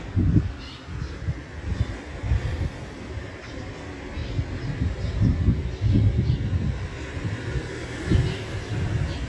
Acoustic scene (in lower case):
residential area